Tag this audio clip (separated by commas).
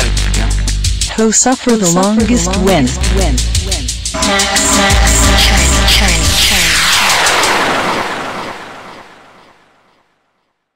speech noise